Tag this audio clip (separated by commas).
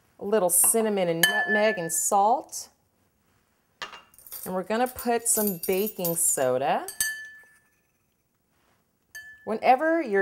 Speech